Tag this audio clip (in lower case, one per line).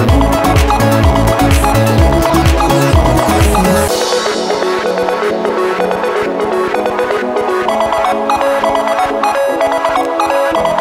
music